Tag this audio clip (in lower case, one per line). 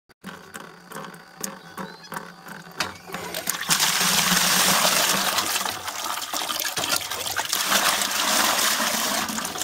sink (filling or washing)
water